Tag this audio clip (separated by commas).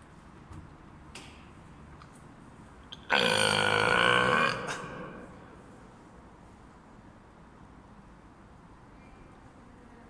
people burping